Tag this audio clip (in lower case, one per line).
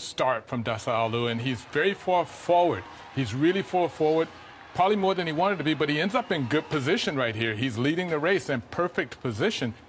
speech